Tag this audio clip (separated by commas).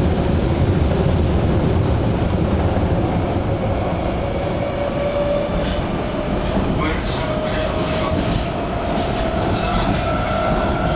Speech, Rail transport, Vehicle, metro, Train